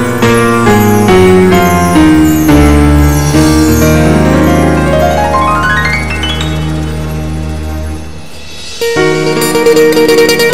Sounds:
Musical instrument, Music

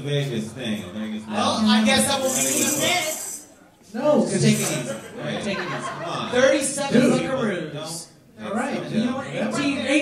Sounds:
Speech

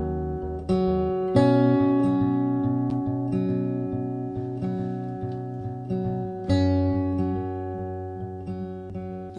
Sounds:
Music

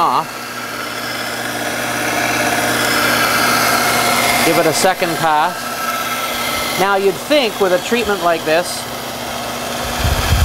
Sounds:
Power tool, Tools

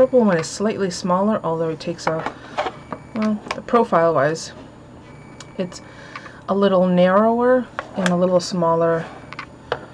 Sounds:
Speech, inside a small room

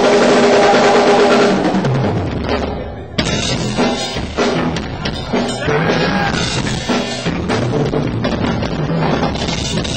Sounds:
Heavy metal, Guitar, Speech, Musical instrument, Bass guitar, Rock music, Music

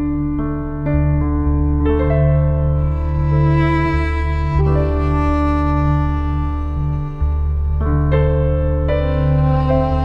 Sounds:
Music, Tender music

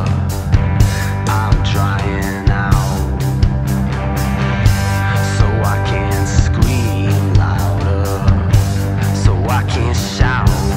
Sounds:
Rhythm and blues, Music

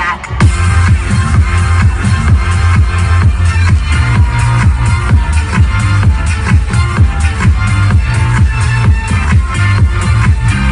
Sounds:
Music, Independent music

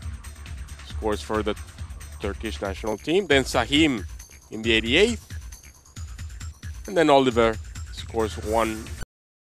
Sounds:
Music, Speech

